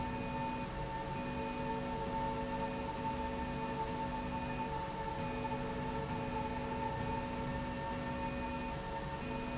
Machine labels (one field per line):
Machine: slide rail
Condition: normal